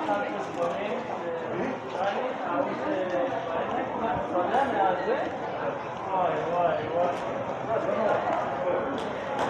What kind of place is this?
crowded indoor space